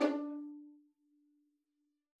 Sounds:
musical instrument, bowed string instrument, music

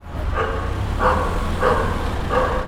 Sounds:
pets, animal, dog

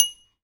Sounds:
domestic sounds, glass, dishes, pots and pans, bell

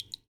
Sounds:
raindrop, water, rain

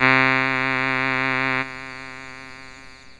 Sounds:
music, keyboard (musical), musical instrument

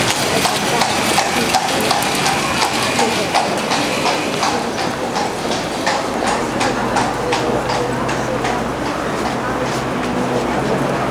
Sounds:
livestock, animal

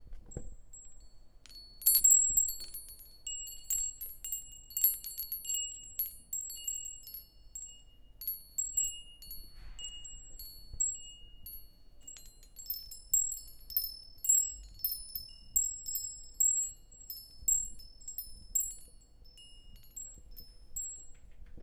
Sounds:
chime, bell

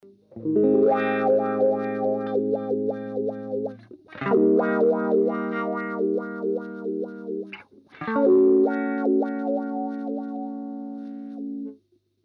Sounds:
musical instrument, music, guitar, plucked string instrument

